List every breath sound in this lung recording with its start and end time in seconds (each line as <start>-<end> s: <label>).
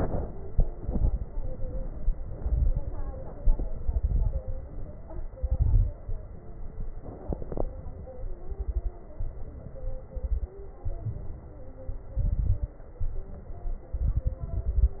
0.74-1.27 s: exhalation
0.74-1.27 s: crackles
2.41-3.25 s: inhalation
2.41-3.25 s: crackles
3.44-4.42 s: exhalation
3.44-4.42 s: crackles
5.39-5.93 s: inhalation
5.39-5.93 s: crackles
8.44-8.97 s: exhalation
8.44-8.97 s: crackles
9.18-10.13 s: inhalation
10.15-10.53 s: exhalation
10.15-10.53 s: crackles
10.87-11.82 s: inhalation
12.14-12.77 s: exhalation
12.14-12.77 s: crackles
13.02-13.98 s: inhalation
13.97-15.00 s: exhalation
13.97-15.00 s: crackles